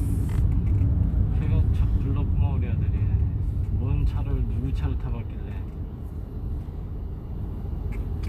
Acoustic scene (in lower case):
car